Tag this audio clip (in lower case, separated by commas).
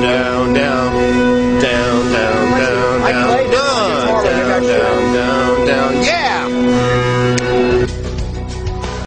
speech, male singing, music